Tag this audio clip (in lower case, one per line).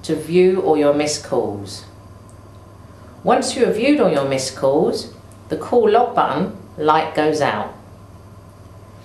speech